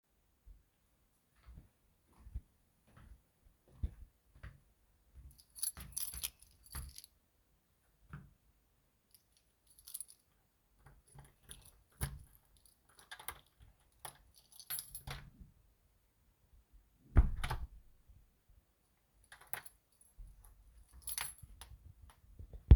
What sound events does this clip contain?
footsteps, keys, door